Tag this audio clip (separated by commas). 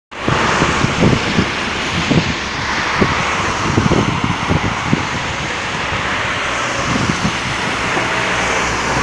outside, urban or man-made, Vehicle, Car